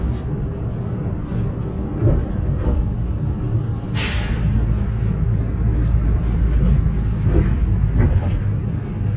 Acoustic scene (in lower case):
bus